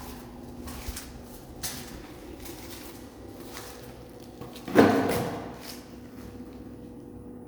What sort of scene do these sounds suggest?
elevator